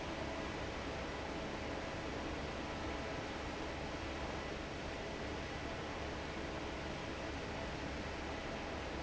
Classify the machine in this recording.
fan